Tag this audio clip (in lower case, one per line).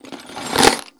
tools